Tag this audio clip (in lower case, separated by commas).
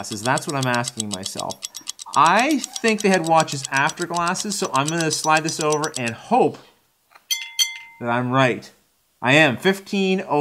inside a small room, speech